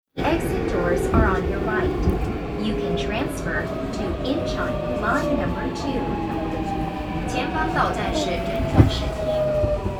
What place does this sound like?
subway train